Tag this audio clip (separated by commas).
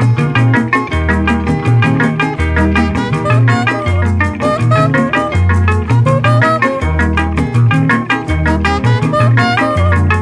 Traditional music, Music